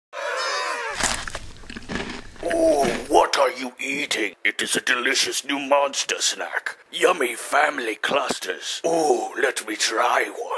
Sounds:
Speech

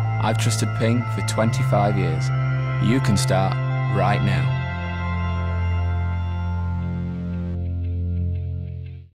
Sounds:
Music, Speech

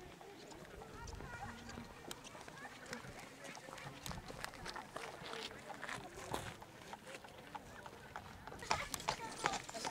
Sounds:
Speech

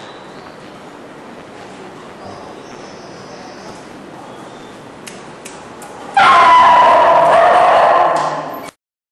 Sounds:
Animal, Yip, Bow-wow, Dog, pets

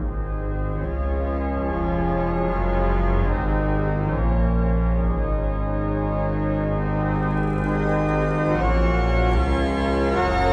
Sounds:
Hammond organ, Organ

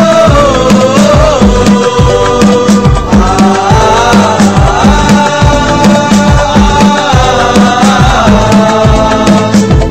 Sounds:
Music

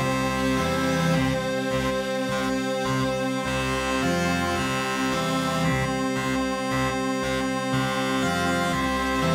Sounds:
Music, Bagpipes

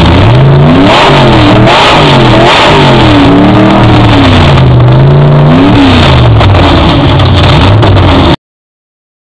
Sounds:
Vehicle, Car, revving

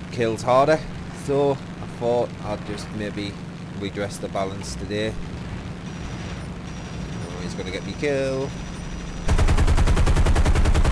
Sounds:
Speech

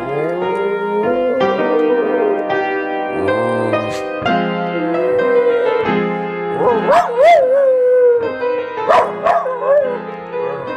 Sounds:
Music

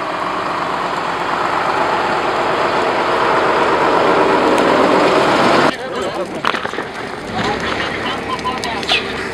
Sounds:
Speech, Vehicle, Fire

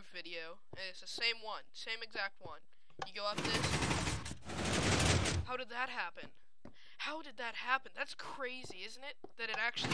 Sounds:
Speech

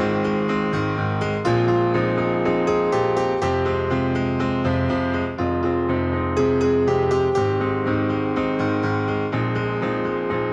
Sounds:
Music

